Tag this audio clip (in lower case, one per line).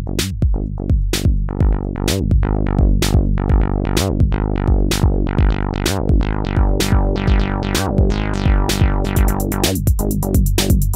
playing synthesizer